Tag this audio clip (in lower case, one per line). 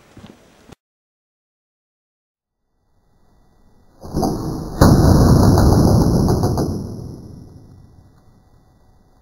arrow